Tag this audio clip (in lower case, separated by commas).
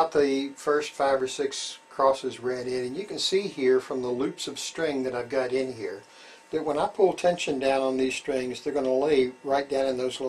speech